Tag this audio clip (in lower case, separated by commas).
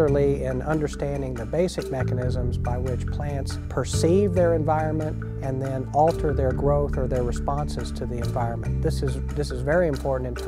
music, speech